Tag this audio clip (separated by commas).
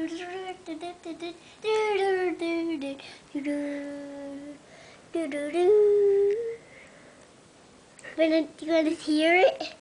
Child singing, Speech